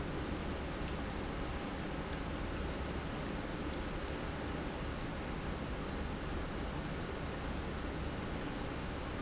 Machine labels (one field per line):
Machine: pump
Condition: normal